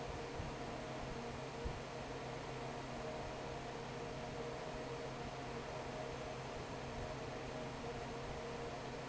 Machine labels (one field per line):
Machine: fan